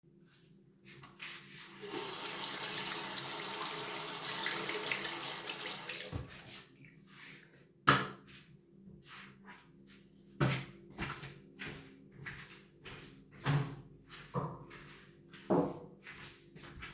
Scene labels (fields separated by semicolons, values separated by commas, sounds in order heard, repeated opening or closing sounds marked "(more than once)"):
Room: bathroom; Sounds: footsteps, running water, light switch